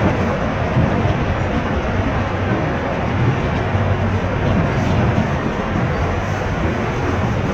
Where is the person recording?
on a bus